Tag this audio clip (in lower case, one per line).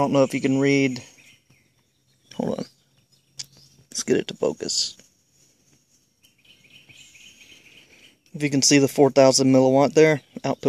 chirp
bird
bird vocalization